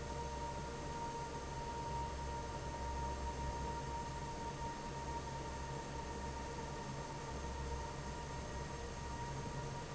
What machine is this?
fan